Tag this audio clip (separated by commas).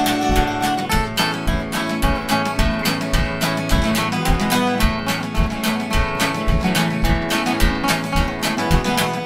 Music